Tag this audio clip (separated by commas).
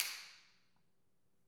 Hands, Clapping